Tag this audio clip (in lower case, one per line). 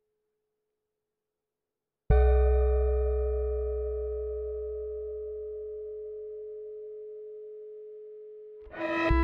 musical instrument
bowed string instrument
inside a small room
music